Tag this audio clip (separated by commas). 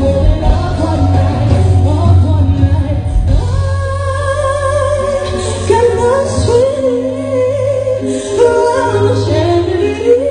Music, Male singing